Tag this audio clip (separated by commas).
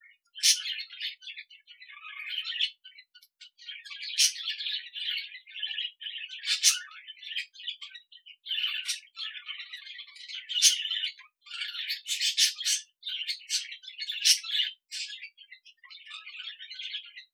Chirp, Animal, Wild animals, Bird vocalization, Bird